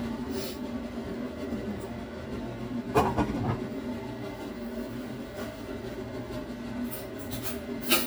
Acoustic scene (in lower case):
kitchen